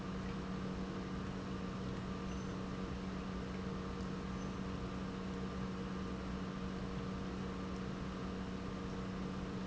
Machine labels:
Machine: pump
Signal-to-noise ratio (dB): 0 dB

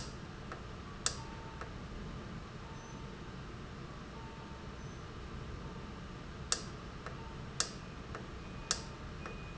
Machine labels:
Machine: valve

